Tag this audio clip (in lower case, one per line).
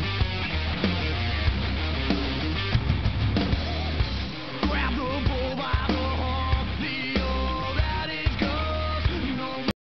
music